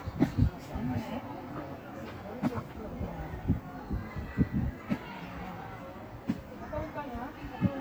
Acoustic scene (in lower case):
park